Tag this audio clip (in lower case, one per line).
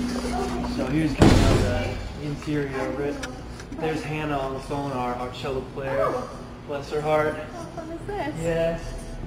speech